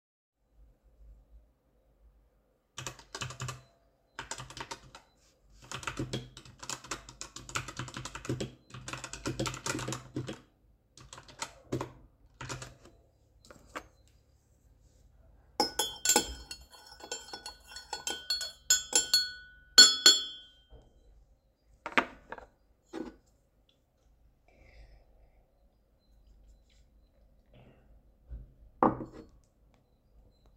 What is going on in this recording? I am typing on my keyboard, I stir my drink with a spoon, I take a sip, traffic and birds can be heard in the background